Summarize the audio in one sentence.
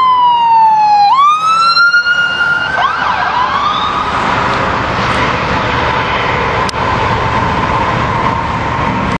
Police siren blares amid general town noise